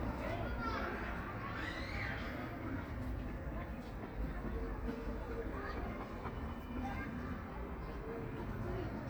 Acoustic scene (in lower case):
park